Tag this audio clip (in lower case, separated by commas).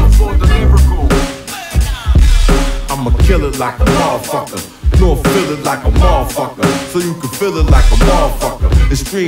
music, funk